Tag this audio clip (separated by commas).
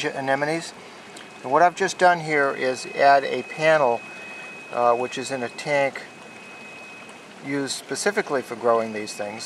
Speech